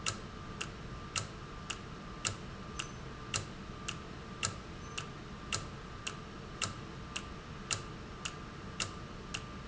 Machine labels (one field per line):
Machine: valve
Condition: normal